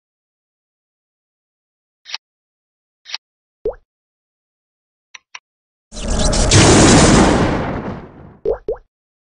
The loud sound of computer generated thunder strikes once